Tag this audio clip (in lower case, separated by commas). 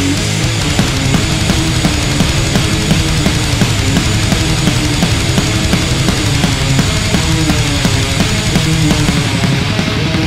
guitar, music, plucked string instrument, strum, musical instrument, electric guitar